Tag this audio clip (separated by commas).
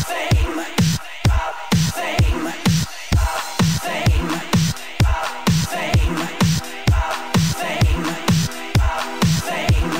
Music